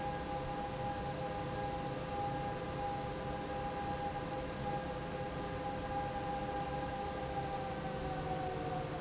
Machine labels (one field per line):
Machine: fan